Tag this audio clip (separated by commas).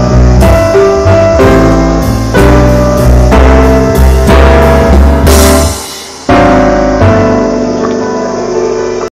Music